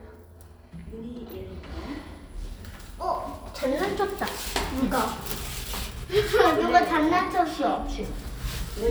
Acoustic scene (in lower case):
elevator